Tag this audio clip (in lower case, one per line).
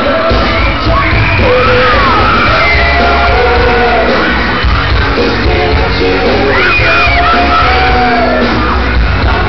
inside a large room or hall
music
shout
singing